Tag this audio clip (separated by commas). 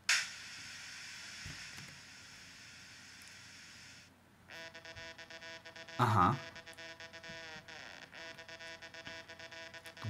Speech